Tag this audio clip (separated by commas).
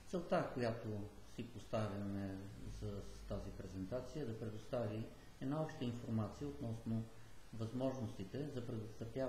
man speaking, Speech